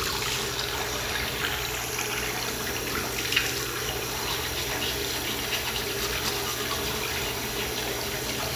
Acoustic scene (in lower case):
restroom